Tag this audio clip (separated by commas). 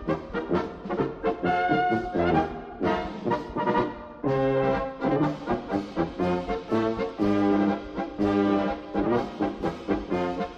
Music